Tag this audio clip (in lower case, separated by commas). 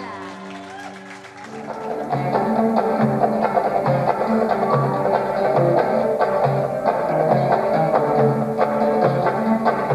blues, middle eastern music, music, dance music, exciting music